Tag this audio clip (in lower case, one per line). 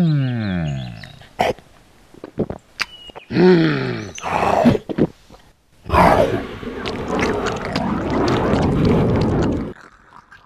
outside, rural or natural